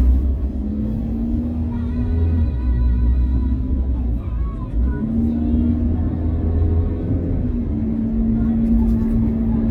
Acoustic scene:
car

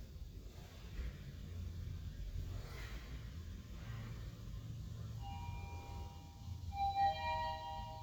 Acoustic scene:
elevator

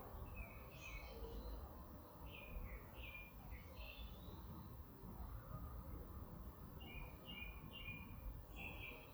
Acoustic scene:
park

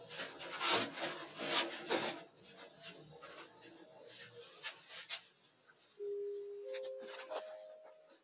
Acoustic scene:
elevator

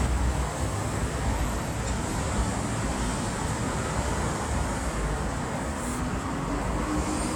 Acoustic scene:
street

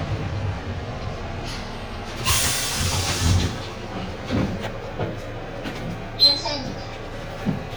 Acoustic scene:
bus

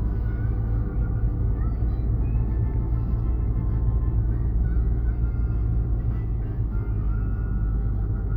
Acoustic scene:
car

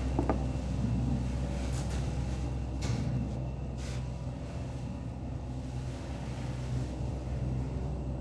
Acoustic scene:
elevator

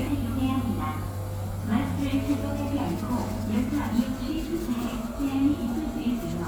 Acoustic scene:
subway station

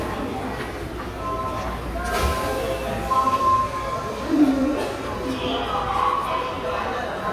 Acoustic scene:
subway station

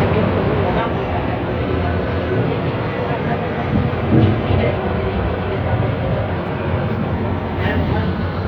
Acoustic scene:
bus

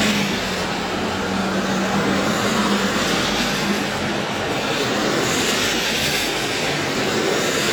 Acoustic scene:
street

